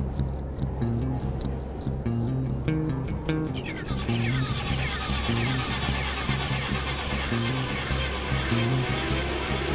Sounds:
Music, Progressive rock

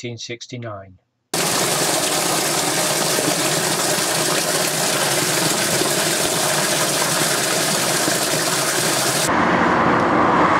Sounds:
Speech, Stream

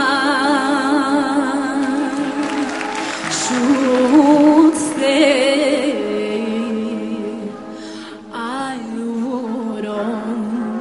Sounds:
Independent music, Music, Soundtrack music

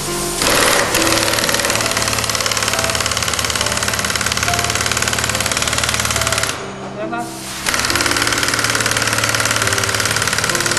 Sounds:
Speech, Music

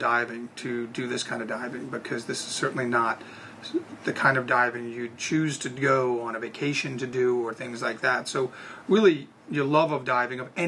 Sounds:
inside a small room, Speech

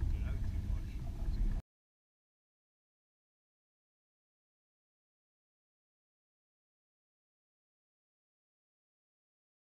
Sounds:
Speech

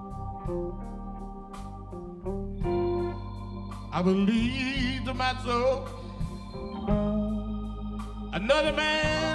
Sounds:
Singing, Music

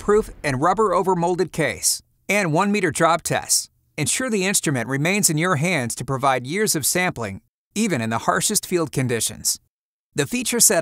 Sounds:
Speech

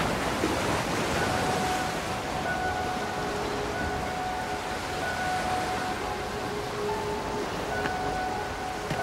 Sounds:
Music

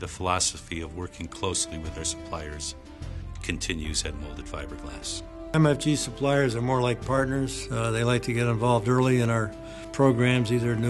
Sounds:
Music, Speech

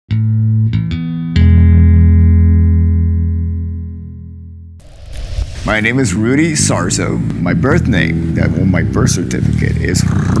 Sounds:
Speech, Plucked string instrument, Musical instrument, Bass guitar, Guitar, Music

